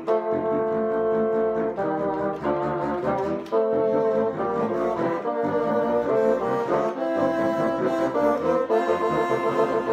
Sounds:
playing bassoon

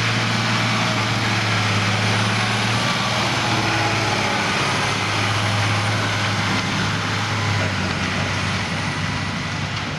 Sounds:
outside, rural or natural, Vehicle

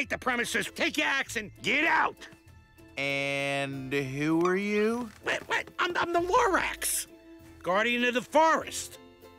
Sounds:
Speech, Music

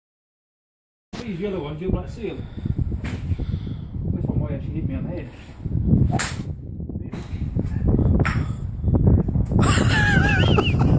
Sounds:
golf driving

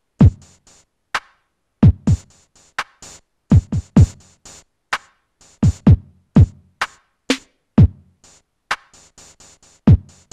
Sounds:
playing tympani

